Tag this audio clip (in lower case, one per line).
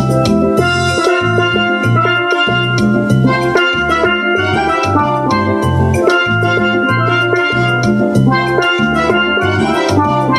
steelpan
music